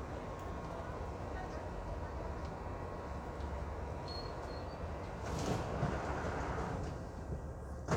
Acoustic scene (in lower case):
subway train